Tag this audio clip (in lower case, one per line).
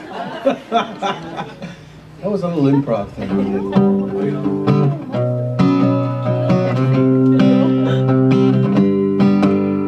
strum
music
guitar
musical instrument
speech
plucked string instrument